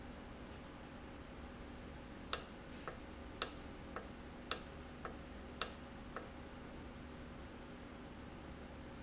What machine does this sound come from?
valve